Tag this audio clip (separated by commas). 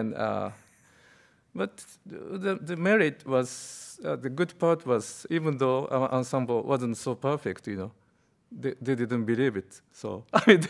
Speech